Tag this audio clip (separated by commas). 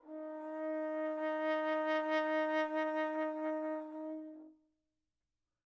Musical instrument, Music, Brass instrument